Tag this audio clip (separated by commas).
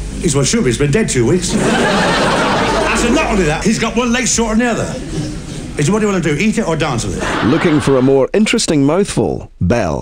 Speech